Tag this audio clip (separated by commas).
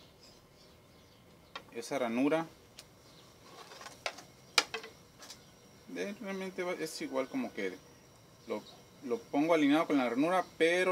Speech